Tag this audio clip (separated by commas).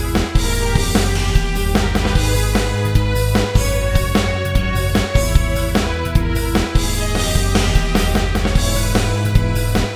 Soundtrack music, Blues, Music